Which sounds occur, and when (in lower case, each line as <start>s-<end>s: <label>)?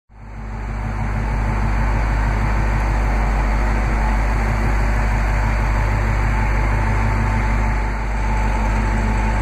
0.1s-9.4s: medium engine (mid frequency)